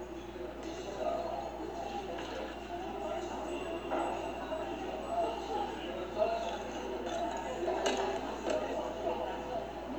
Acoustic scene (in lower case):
cafe